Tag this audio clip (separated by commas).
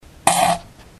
Fart